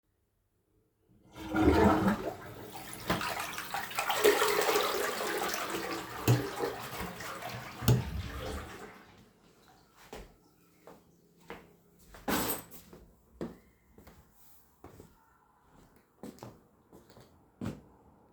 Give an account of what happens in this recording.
I flushed the toilet, turned off the light, and walked out of the room.